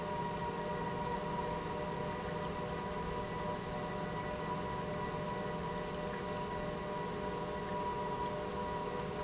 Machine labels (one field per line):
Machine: pump